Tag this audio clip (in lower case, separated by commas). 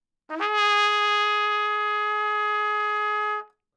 trumpet, musical instrument, brass instrument, music